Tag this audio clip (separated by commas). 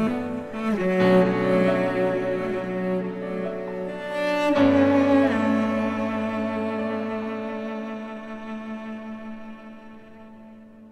playing cello